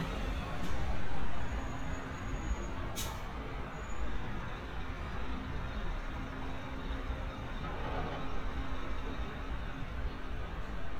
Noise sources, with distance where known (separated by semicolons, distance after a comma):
large-sounding engine